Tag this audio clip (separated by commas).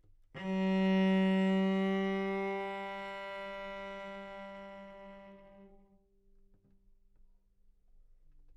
Music, Bowed string instrument, Musical instrument